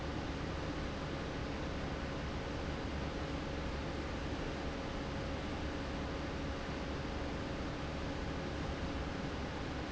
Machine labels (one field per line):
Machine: fan